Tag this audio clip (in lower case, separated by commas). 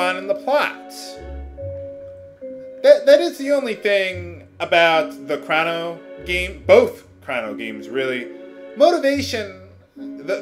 music, tubular bells, speech